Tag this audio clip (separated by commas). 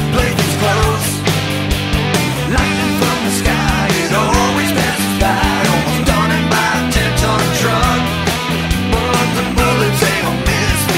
Music, Rhythm and blues